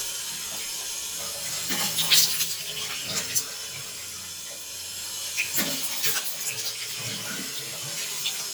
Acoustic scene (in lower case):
restroom